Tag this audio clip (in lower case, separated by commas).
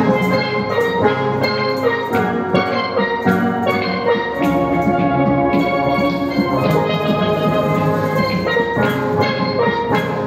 steelpan, music, drum